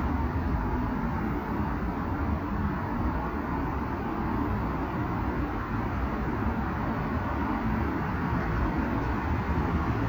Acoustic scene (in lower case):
street